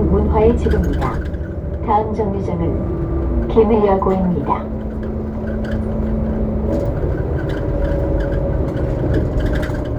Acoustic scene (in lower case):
bus